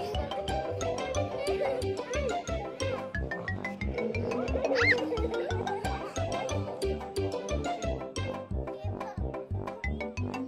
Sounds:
Speech, Music

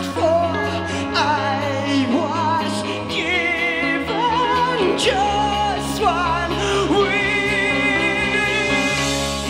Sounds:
Music, Electronic music

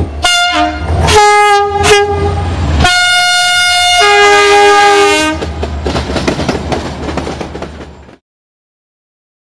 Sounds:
Toot, Vehicle, train wagon, Train, Rail transport

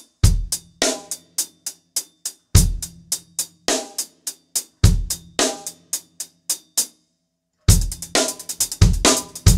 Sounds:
playing bass drum

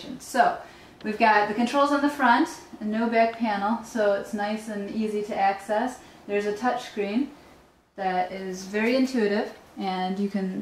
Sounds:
Speech

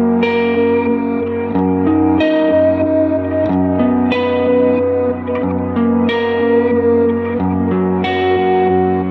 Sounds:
Music

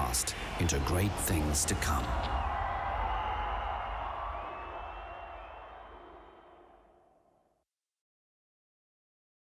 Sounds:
Speech

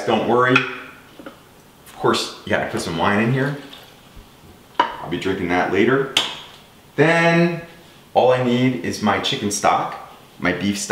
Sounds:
Speech, inside a small room

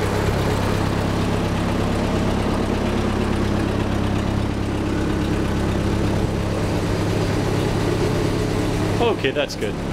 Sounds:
Speech, Vehicle

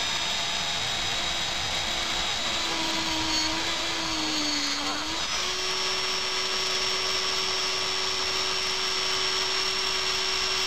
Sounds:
Tools, Power tool

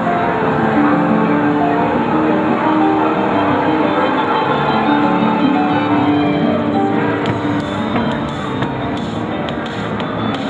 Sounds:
Music

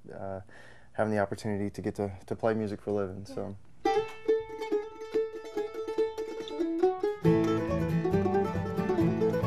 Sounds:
Mandolin, Musical instrument, Speech, Guitar, Plucked string instrument, Country, Music

